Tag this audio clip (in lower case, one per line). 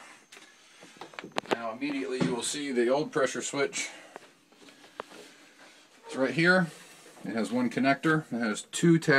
speech